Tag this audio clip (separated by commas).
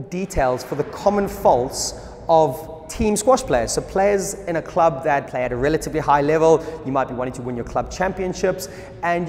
playing squash